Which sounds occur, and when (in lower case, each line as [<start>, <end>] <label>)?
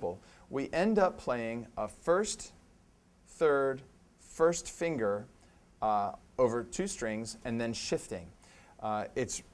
[0.00, 9.53] background noise
[0.01, 0.12] man speaking
[0.41, 2.27] man speaking
[3.24, 3.88] man speaking
[4.23, 4.50] man speaking
[4.70, 5.21] man speaking
[5.71, 6.16] man speaking
[6.27, 7.24] man speaking
[7.37, 8.18] man speaking
[8.79, 9.29] man speaking